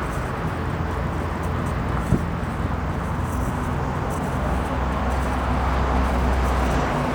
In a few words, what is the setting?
street